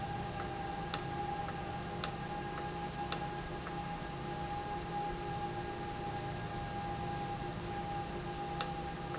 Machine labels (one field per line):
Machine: valve